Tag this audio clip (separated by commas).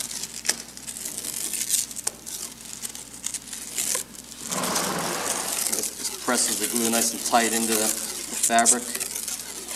Speech